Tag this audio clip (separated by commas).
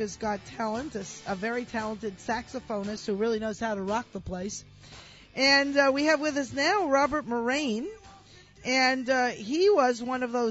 Speech, Music